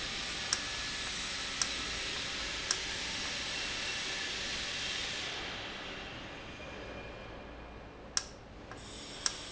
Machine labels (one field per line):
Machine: valve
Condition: normal